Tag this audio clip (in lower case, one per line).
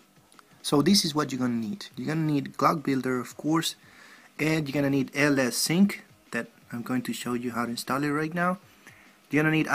speech